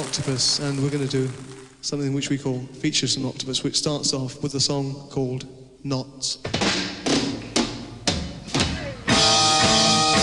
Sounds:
Speech, inside a large room or hall, Music

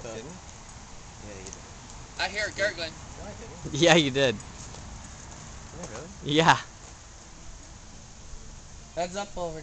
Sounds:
Speech

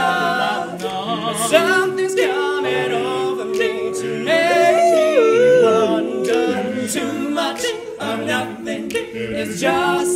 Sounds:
A capella, Singing, Vocal music, Choir

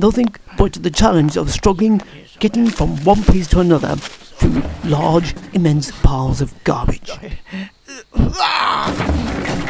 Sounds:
Speech

